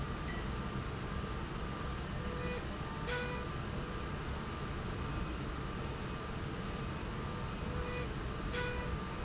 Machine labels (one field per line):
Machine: slide rail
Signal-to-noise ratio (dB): -6 dB